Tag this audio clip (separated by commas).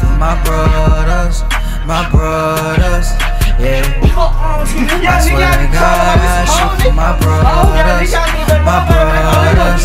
Music, Speech